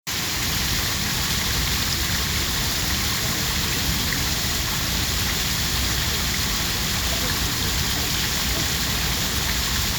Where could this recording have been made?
in a park